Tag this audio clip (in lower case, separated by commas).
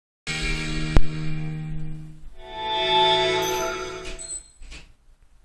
music